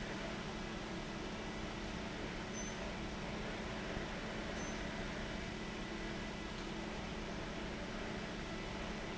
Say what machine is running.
fan